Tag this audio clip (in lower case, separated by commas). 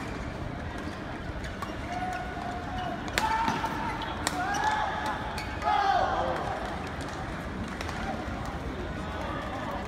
speech